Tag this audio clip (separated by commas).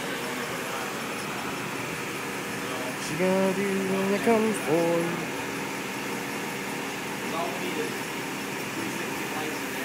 Vehicle, Speech